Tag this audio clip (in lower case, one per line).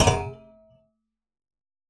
thump